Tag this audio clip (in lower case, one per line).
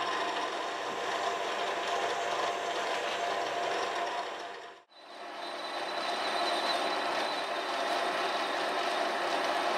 lathe spinning